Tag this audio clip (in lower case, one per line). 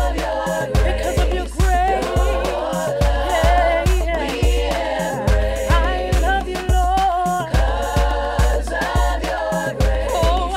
afrobeat
singing
music